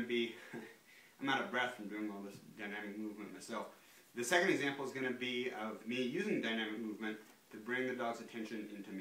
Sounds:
Speech

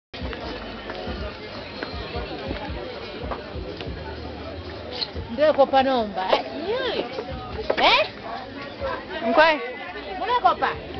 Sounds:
Music, Speech, inside a public space

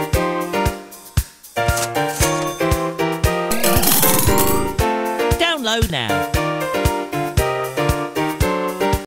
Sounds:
Music

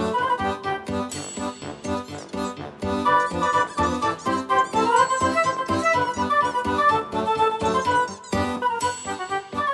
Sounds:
Music

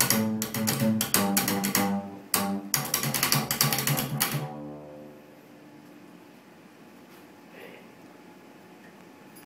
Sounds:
Musical instrument, Speech, Music

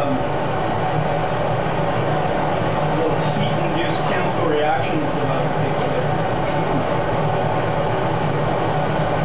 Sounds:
Speech

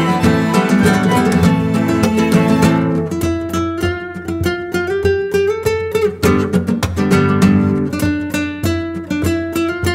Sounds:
Music

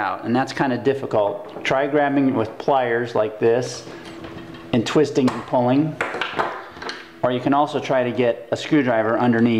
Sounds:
Speech

